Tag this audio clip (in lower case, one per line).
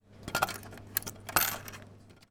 coin (dropping)
domestic sounds